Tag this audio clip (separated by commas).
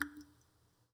Water, Liquid, Raindrop, Rain, Drip